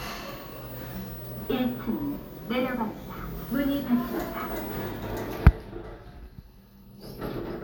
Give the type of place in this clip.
elevator